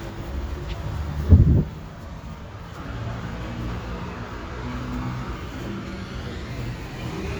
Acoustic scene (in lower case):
street